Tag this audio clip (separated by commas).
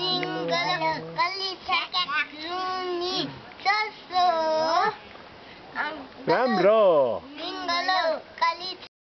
Speech